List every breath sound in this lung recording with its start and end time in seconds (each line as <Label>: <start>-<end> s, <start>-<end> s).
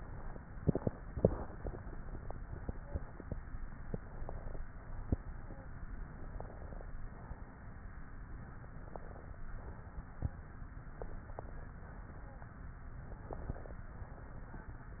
Inhalation: 3.89-4.60 s, 6.16-6.88 s, 8.60-9.43 s, 10.89-11.72 s, 12.98-13.82 s
Exhalation: 4.71-5.78 s, 7.04-8.12 s, 9.53-10.61 s, 11.83-12.54 s, 13.92-14.86 s